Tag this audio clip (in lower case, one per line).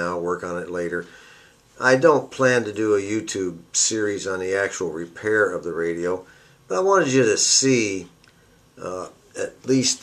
speech